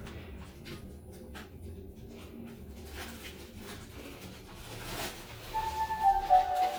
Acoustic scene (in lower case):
elevator